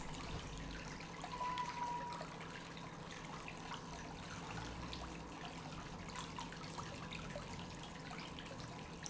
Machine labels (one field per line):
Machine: pump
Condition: normal